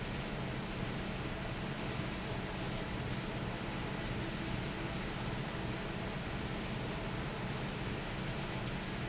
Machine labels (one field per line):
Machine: fan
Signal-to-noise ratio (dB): -6 dB